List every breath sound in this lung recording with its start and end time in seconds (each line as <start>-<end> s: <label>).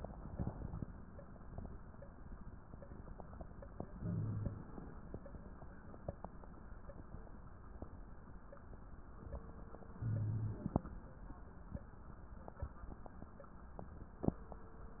0.00-0.86 s: inhalation
3.91-4.81 s: inhalation
9.95-10.85 s: inhalation